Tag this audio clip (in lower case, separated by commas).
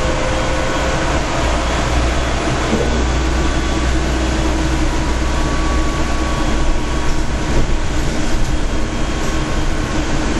vehicle, train